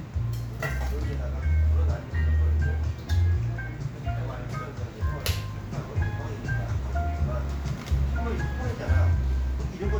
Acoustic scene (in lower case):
cafe